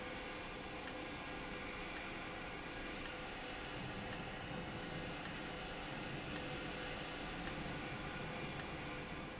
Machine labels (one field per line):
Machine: valve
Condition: abnormal